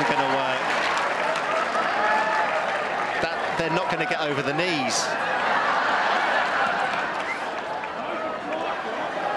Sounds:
playing tennis

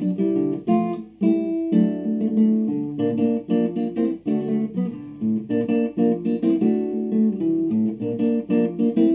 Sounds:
Music, Guitar, Strum, Plucked string instrument, Musical instrument

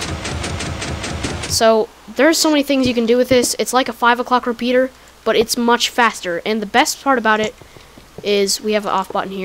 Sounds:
Speech

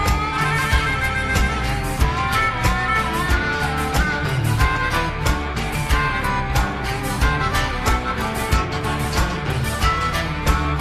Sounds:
playing harmonica

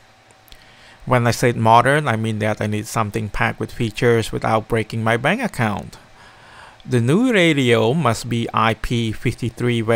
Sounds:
Speech

